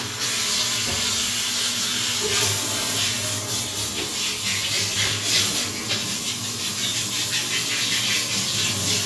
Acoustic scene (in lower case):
restroom